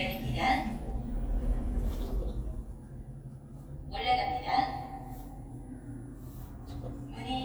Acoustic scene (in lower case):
elevator